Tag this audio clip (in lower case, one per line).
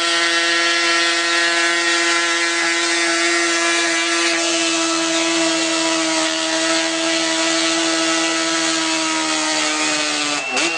vehicle
motorcycle